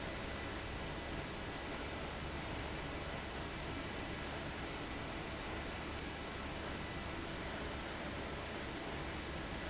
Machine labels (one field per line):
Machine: fan